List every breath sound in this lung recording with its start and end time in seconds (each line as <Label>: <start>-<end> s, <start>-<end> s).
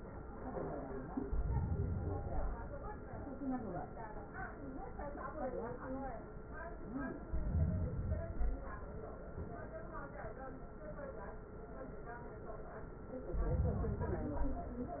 Inhalation: 1.19-2.69 s, 7.24-8.74 s, 13.16-14.72 s